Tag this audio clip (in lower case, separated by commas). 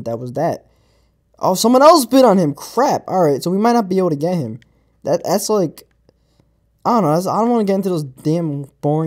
speech